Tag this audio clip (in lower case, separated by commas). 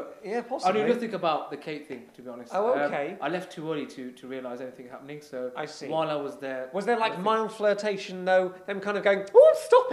speech, inside a small room